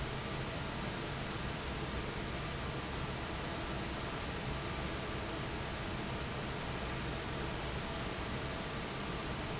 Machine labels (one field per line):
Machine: fan